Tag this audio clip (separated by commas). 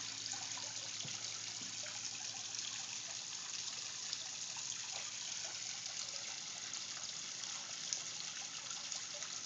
Stream